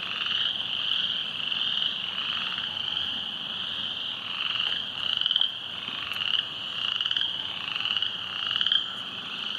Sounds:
frog croaking

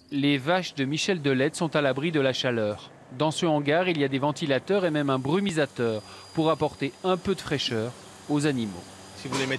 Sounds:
running electric fan

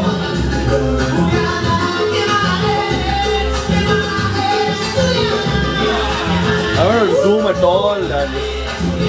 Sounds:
speech, music

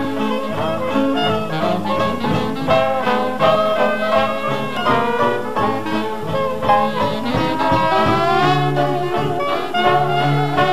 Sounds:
trombone, brass instrument, trumpet

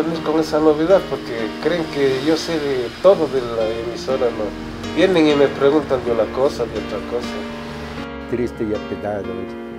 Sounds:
music, speech

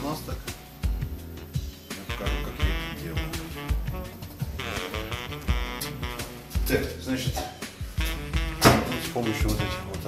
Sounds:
speech, music

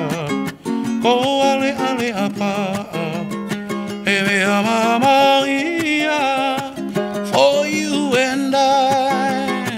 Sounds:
music

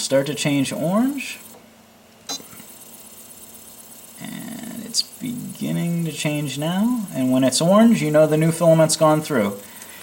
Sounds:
speech

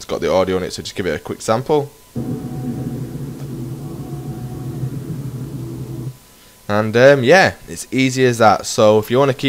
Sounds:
speech

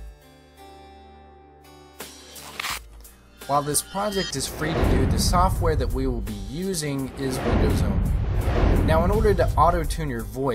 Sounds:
speech, music

